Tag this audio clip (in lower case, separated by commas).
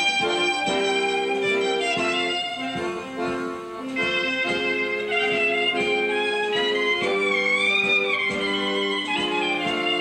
wedding music, music